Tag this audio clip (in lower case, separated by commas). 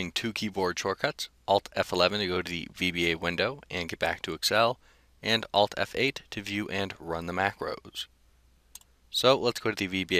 speech